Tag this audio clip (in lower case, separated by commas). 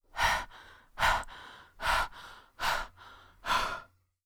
breathing, respiratory sounds